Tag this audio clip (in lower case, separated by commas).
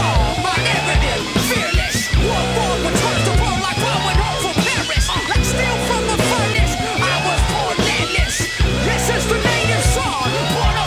funk, rhythm and blues, music